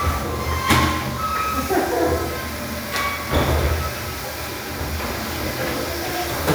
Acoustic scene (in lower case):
restroom